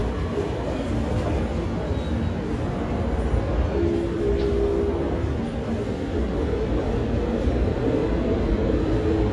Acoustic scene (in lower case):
subway station